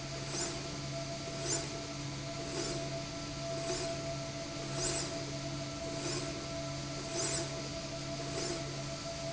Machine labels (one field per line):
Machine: slide rail